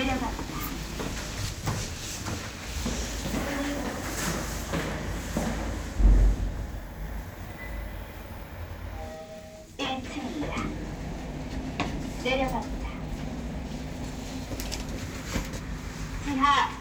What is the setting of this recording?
elevator